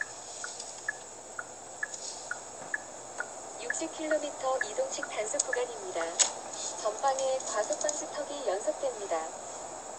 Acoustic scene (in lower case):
car